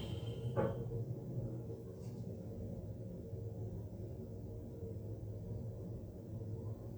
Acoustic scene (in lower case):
car